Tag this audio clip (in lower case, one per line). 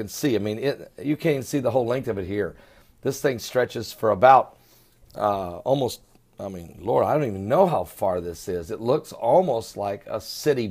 speech